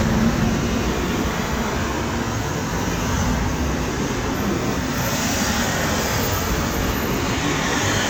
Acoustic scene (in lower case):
street